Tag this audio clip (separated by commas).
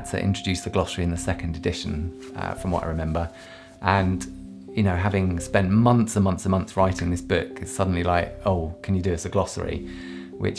Speech, Music